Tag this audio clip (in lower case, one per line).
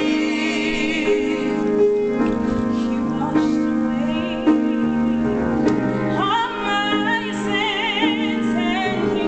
singing
music
electronic organ
choir